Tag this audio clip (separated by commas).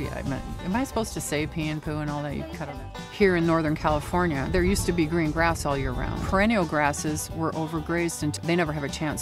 Speech, Music